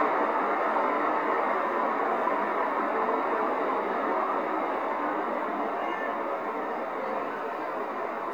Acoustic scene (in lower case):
street